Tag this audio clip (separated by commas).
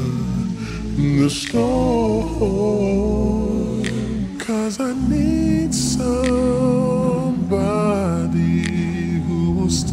Music